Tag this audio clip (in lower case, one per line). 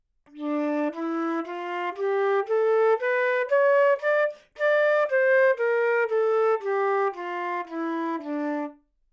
wind instrument
musical instrument
music